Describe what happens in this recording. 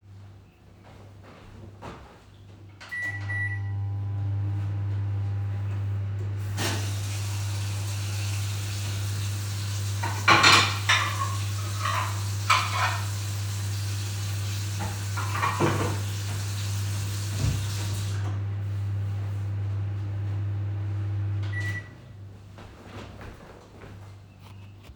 I started the microwave and immediately turned on the tap and ran water in the sink. While the water was running I began handling cutlery and dishes. I turned off the water and then turned off the microwave. I walked across the kitchen to put things away.